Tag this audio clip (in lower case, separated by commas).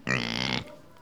animal, livestock